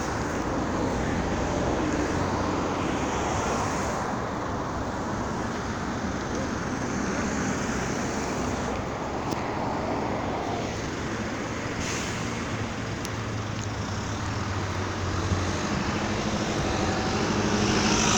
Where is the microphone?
on a street